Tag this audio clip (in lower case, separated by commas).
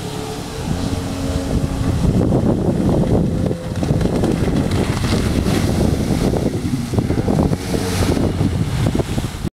vehicle, motorboat, boat